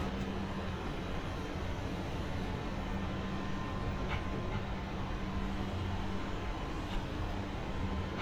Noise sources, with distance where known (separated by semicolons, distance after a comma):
medium-sounding engine